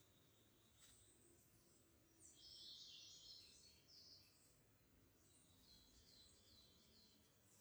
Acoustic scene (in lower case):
park